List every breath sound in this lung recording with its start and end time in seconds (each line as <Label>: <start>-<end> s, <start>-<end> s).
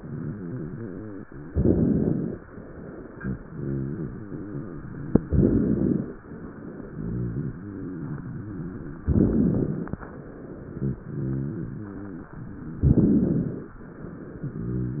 Inhalation: 1.50-2.39 s, 5.24-6.13 s, 9.07-9.96 s, 12.88-13.78 s
Rhonchi: 0.00-1.42 s, 3.02-5.27 s, 6.74-8.98 s, 10.49-12.32 s, 14.27-15.00 s
Crackles: 1.50-2.39 s, 5.24-6.13 s, 9.07-9.96 s, 12.88-13.78 s